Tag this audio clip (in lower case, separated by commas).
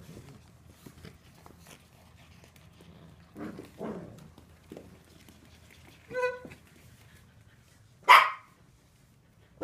bow-wow, dog bow-wow, animal, pets, dog